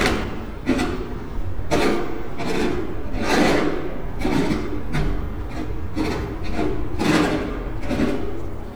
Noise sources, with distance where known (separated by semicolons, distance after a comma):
pile driver, near